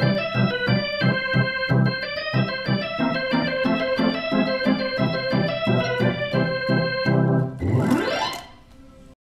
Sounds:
music
organ
electronic organ

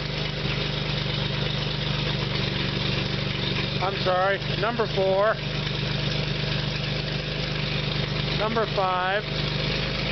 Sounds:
speech
engine
inside a large room or hall

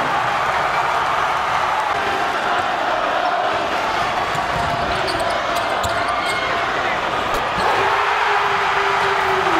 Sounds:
crowd
basketball bounce

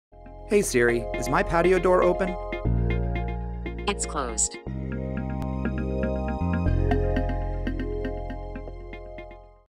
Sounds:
music
speech

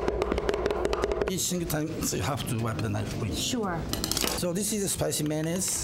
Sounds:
speech

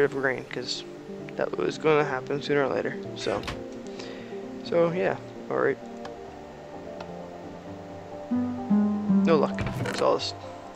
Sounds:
speech
music

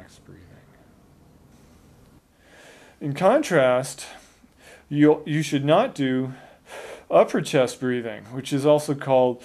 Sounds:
speech
snort
gasp

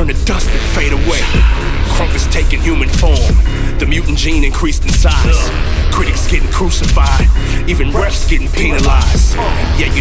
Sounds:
music
speech

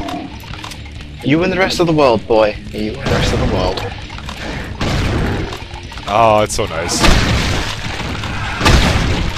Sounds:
speech
inside a large room or hall

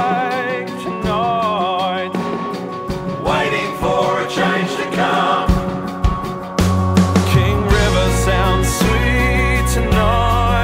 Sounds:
music

